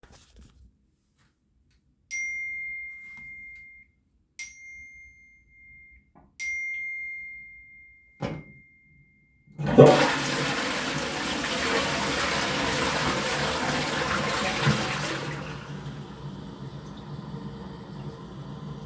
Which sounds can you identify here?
phone ringing, toilet flushing